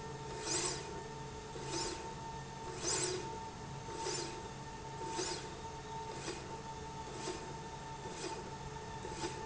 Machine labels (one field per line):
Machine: slide rail